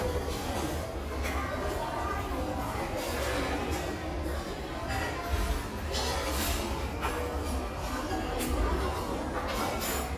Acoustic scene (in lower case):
restaurant